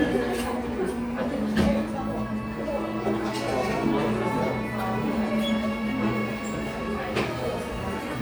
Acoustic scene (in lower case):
crowded indoor space